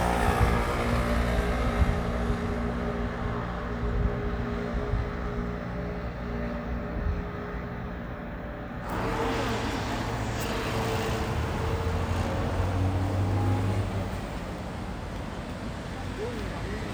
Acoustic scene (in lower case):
street